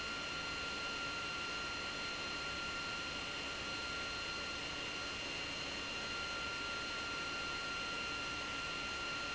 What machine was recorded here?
pump